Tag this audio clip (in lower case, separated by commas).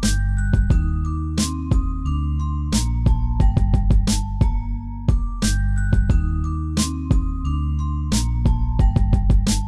music, soundtrack music